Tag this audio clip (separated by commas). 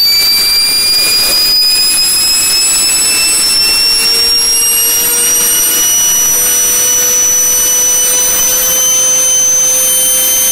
Steam whistle